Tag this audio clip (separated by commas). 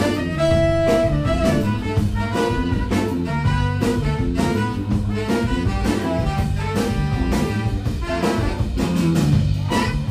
Music, Rock and roll, Blues